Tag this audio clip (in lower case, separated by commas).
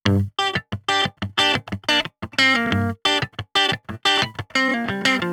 guitar, electric guitar, plucked string instrument, music, musical instrument